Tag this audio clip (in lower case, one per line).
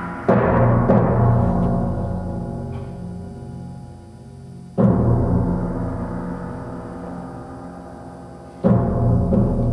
musical instrument
timpani
music